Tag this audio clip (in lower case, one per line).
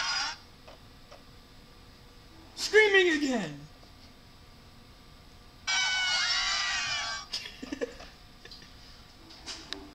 speech